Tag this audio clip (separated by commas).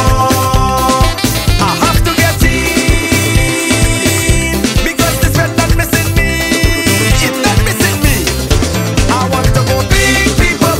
Dance music, Music